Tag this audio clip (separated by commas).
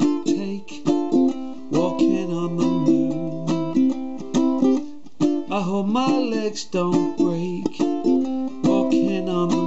Music, Ukulele, Musical instrument, inside a small room